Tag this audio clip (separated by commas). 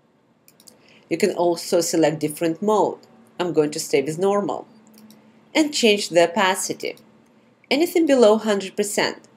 Speech